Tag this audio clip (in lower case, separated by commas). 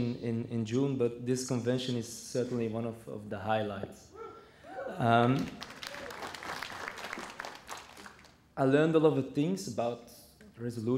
man speaking, speech